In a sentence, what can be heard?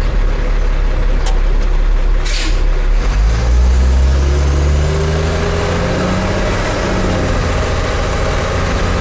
Semi-truck coming to a stop and then slowly accelerating again